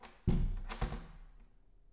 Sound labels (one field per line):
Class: door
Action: closing